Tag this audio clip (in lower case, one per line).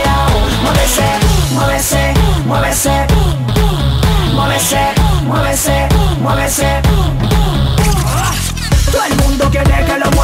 exciting music
music